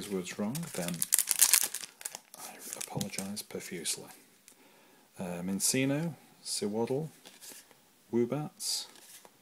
Males speaking to each other while crinkling sounds